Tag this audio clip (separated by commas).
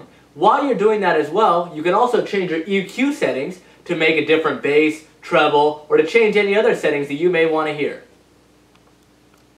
Speech